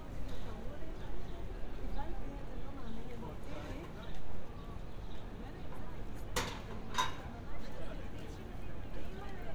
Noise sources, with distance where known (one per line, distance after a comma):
person or small group talking